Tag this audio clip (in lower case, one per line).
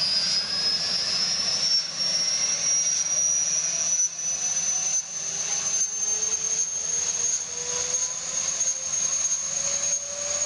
aircraft
helicopter
vehicle